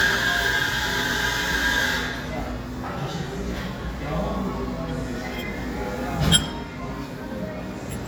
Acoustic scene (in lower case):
cafe